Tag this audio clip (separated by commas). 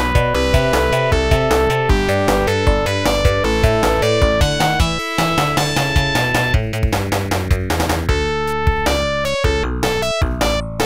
Music